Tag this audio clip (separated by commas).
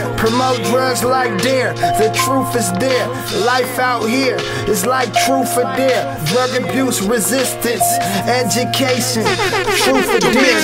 Hip hop music, Music